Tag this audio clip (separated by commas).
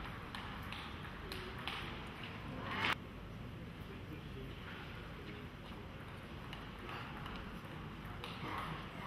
Speech